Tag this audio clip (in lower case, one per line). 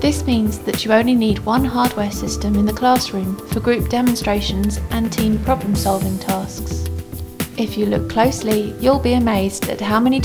speech
music